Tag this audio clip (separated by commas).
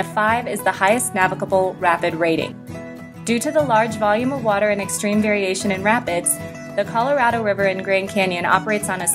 Speech, Music